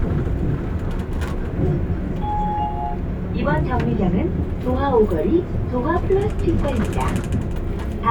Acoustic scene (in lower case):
bus